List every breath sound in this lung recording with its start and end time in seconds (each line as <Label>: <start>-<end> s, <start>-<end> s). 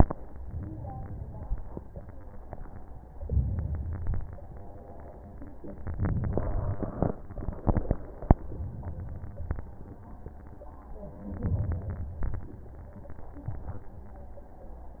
Inhalation: 3.18-4.24 s, 5.80-7.10 s, 11.30-12.24 s
Exhalation: 7.59-8.45 s, 12.25-13.19 s